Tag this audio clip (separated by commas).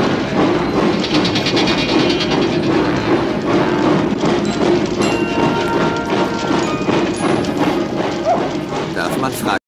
Vehicle, Engine, Speech